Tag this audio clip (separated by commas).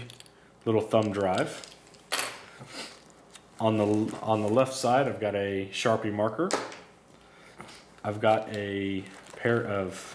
Speech